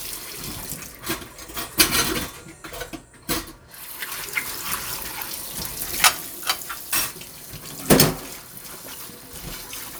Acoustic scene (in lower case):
kitchen